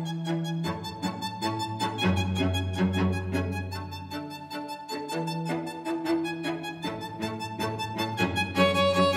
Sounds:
music, cello

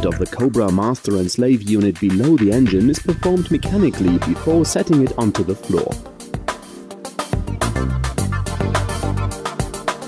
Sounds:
music, speech

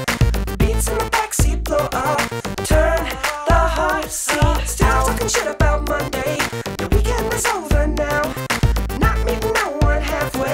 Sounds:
exciting music, music

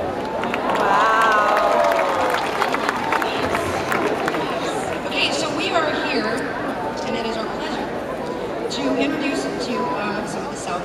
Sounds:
speech

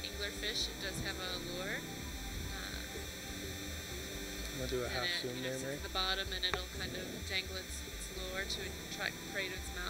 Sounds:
speech

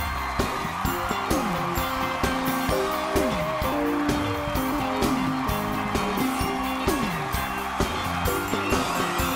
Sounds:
music

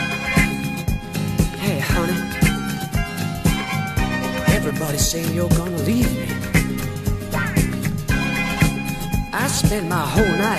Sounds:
soul music, music

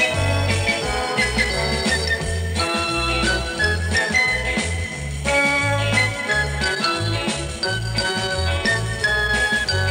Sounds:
jingle bell

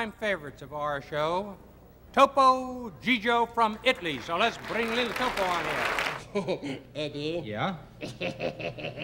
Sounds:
speech, inside a large room or hall

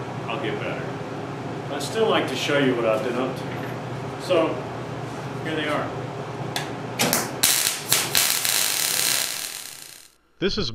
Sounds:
speech

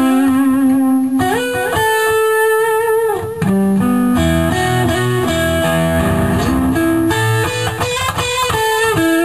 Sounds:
music

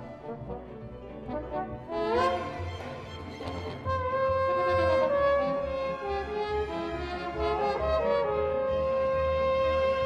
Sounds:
trombone, brass instrument, trumpet

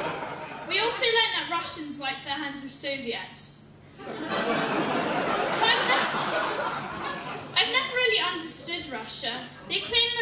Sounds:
speech, child speech

